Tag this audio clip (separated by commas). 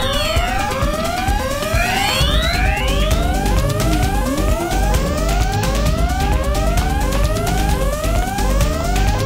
Music